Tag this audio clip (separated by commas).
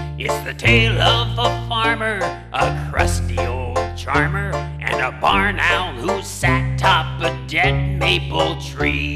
Music